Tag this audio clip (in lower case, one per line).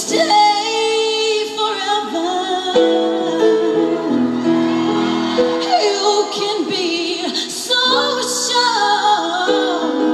female singing
singing
music